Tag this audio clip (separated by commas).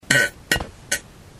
Fart